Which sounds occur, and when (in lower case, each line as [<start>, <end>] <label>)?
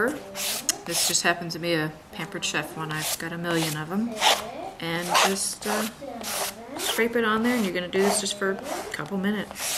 [0.00, 9.75] mechanisms
[0.65, 0.72] human voice
[7.92, 8.94] kid speaking
[8.91, 9.09] generic impact sounds
[8.92, 9.44] female speech
[9.51, 9.75] sanding